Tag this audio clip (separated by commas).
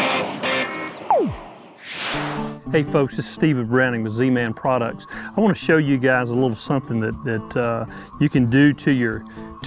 Speech, Music